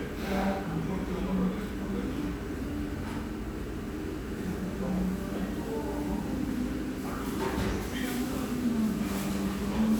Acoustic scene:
restaurant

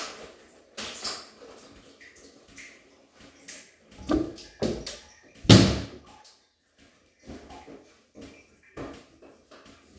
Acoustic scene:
restroom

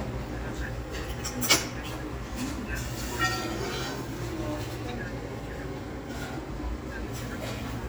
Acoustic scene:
restaurant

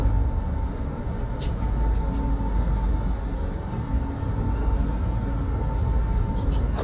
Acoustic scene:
bus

